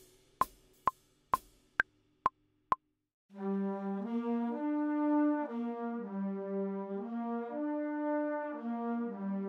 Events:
[0.00, 3.04] music
[0.36, 0.45] sound effect
[0.84, 0.92] sound effect
[1.28, 1.39] sound effect
[1.75, 1.81] sound effect
[2.21, 2.27] sound effect
[2.68, 2.75] sound effect
[3.28, 9.45] music

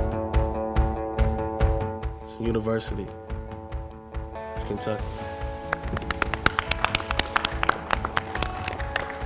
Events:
[0.00, 9.25] music
[2.21, 3.12] male speech
[4.53, 4.99] male speech
[4.94, 5.70] surface contact
[5.69, 7.73] clapping
[7.84, 8.19] clapping
[8.31, 8.47] clapping
[8.60, 9.09] clapping
[9.24, 9.25] clapping

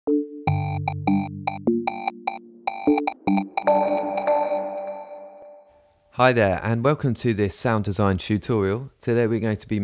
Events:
[0.00, 6.15] music
[5.63, 9.83] background noise
[6.09, 8.88] male speech
[8.98, 9.83] male speech

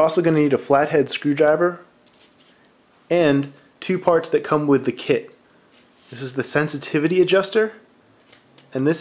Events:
[0.00, 1.77] male speech
[0.00, 9.00] mechanisms
[2.02, 2.08] tick
[2.11, 2.64] generic impact sounds
[2.60, 2.66] tick
[3.08, 3.53] male speech
[3.42, 3.47] tick
[3.53, 3.77] breathing
[3.77, 5.33] male speech
[4.03, 4.09] tick
[5.72, 5.88] breathing
[6.05, 7.79] male speech
[8.24, 8.32] tick
[8.55, 8.63] tick

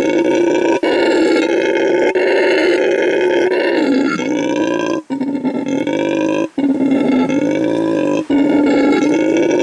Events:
[0.00, 9.62] background noise
[6.55, 9.62] wild animals

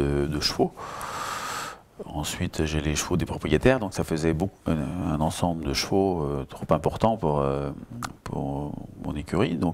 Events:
[0.00, 0.69] male speech
[0.01, 9.73] background noise
[1.89, 4.48] male speech
[4.60, 7.70] male speech
[8.20, 9.73] male speech

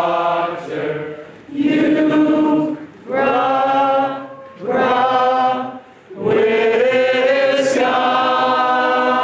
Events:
[0.00, 1.28] choir
[0.00, 9.23] background noise
[1.44, 2.86] choir
[3.07, 5.75] choir
[6.06, 9.23] choir

